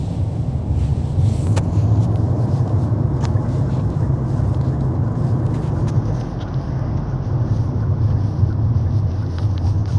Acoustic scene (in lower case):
car